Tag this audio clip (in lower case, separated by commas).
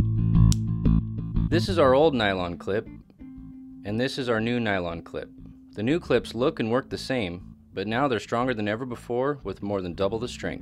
speech, music